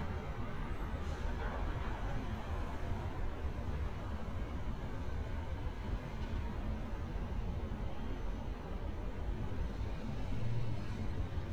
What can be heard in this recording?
engine of unclear size